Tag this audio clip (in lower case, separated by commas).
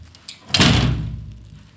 slam, domestic sounds, door